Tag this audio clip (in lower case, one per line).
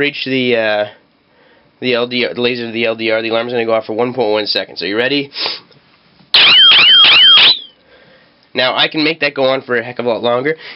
inside a small room
speech